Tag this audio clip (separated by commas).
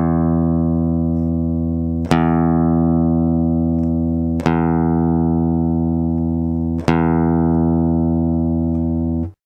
Music, Musical instrument, Guitar, Plucked string instrument